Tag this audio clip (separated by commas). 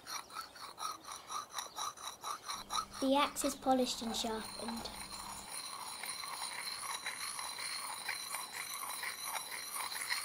Speech